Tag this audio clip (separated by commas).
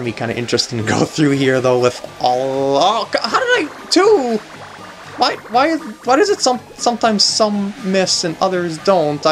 Music, Speech